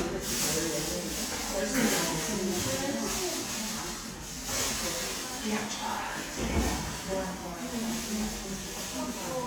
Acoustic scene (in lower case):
crowded indoor space